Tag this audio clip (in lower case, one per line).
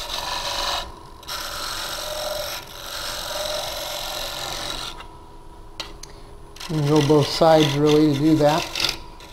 tools
speech